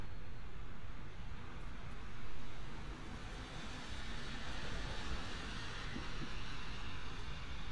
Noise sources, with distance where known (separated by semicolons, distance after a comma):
medium-sounding engine